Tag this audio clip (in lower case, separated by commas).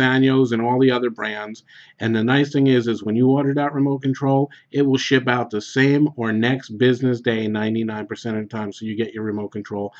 speech